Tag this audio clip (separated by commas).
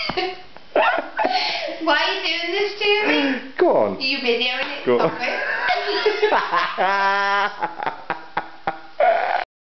Speech